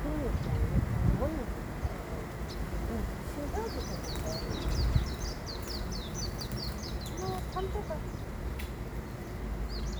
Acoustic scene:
park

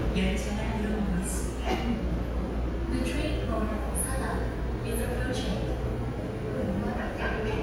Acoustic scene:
subway station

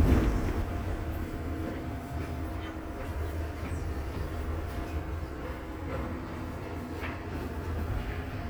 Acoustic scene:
subway train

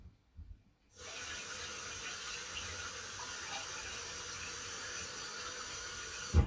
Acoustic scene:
kitchen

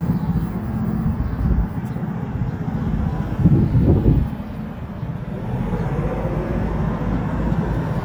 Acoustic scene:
street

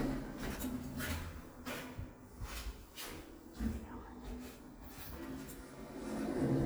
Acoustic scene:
elevator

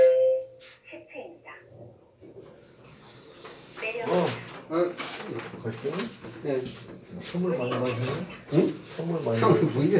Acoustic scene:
elevator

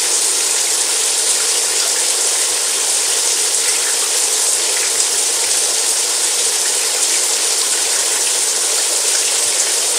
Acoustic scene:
restroom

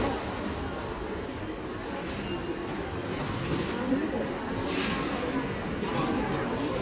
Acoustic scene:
crowded indoor space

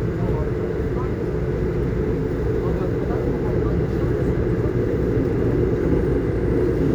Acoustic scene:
subway train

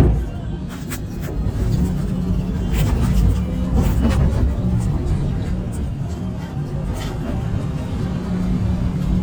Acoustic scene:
bus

